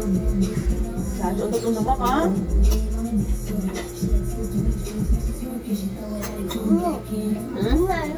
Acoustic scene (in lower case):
restaurant